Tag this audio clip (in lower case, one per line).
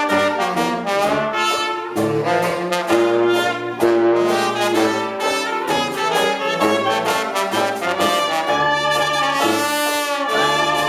music